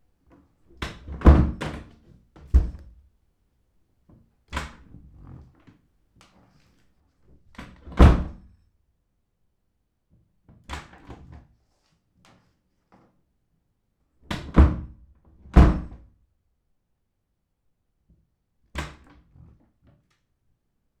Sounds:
Wood

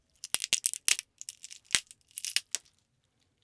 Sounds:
Crackle, Crushing

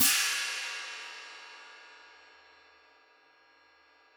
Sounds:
Music, Hi-hat, Cymbal, Musical instrument, Percussion

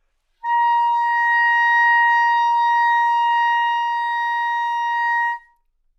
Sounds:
woodwind instrument, Musical instrument, Music

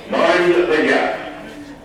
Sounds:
Rail transport, Vehicle, underground

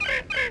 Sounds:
Animal, Wild animals, Bird

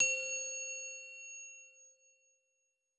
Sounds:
Bell

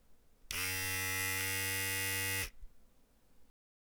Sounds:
home sounds

